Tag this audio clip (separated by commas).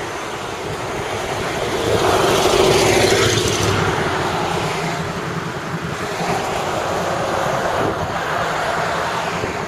Vehicle, Traffic noise